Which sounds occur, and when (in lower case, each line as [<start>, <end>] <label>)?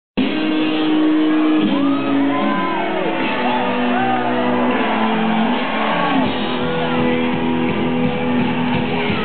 [0.06, 9.24] music
[1.60, 9.24] cheering